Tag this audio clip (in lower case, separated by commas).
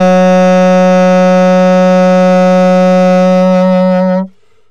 music, musical instrument, woodwind instrument